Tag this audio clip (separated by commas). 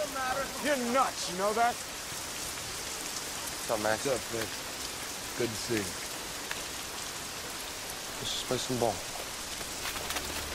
Rain, Raindrop